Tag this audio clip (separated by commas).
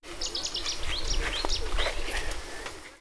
Wild animals, Bird, Animal